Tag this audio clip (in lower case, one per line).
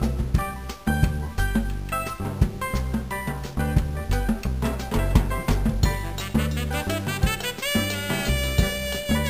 jingle (music)
music